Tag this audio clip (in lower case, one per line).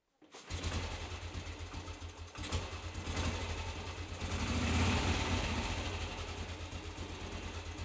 motor vehicle (road)
vehicle
engine
motorcycle